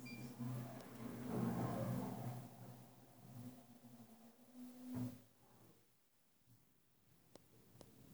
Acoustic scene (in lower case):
elevator